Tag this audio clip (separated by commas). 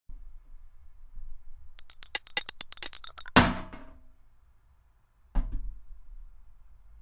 Bell